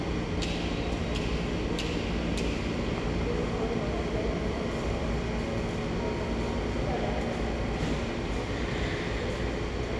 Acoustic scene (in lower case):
subway station